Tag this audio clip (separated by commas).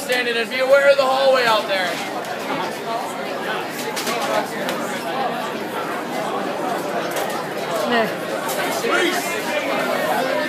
inside a public space, Speech